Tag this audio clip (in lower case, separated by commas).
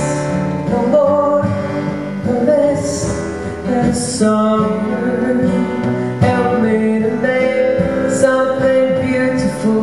music